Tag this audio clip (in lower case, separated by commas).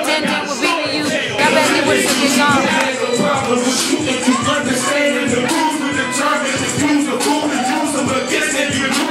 music, disco, speech